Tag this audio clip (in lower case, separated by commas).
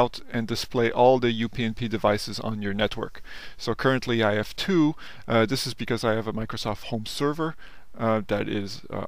speech